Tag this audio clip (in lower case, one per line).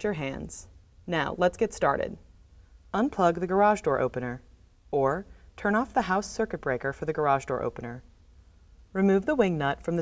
speech